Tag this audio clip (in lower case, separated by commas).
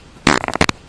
fart